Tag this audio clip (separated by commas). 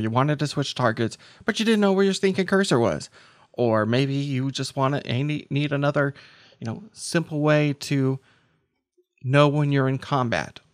Speech